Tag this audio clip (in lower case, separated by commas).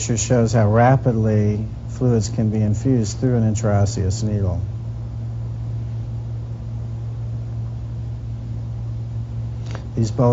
silence, speech